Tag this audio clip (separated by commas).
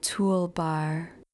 Human voice, Speech, Female speech